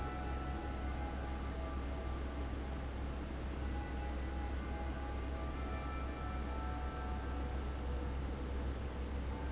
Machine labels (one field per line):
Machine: fan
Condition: abnormal